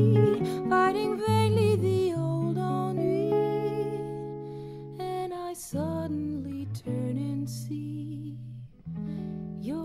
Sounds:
Guitar, Strum, Musical instrument, Plucked string instrument, Music

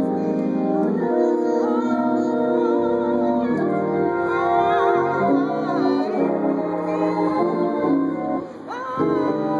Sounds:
Organ, playing hammond organ, Hammond organ

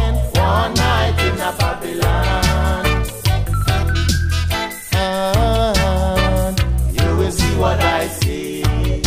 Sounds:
Music

